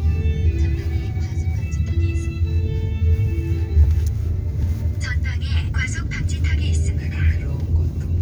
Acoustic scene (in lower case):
car